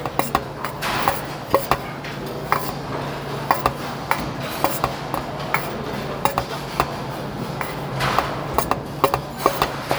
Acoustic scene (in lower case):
restaurant